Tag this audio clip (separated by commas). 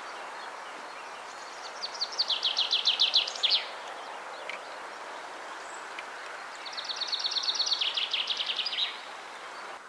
mynah bird singing